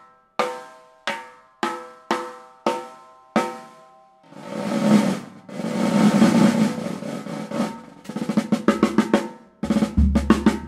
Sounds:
playing snare drum

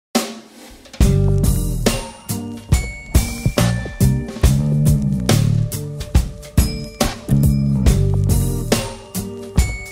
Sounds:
drum

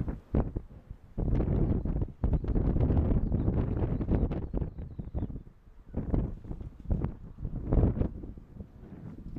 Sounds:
outside, rural or natural

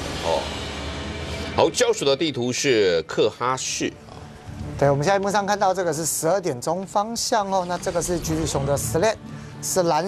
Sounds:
speech, music

